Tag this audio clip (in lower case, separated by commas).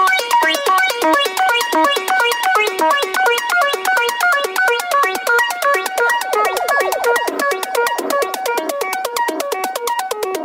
music, ringtone